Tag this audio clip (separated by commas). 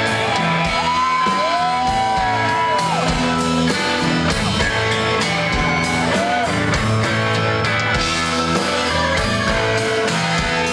Exciting music, Music, Blues